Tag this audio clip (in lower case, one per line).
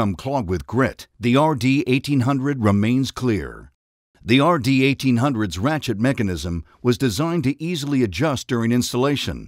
speech